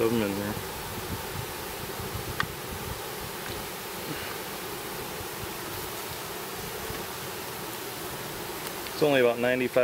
A man talks nearby, followed by bees buzzing rapidly in the distance